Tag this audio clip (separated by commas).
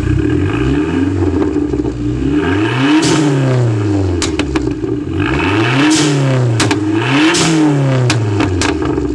Vehicle, Accelerating, Car, Motor vehicle (road)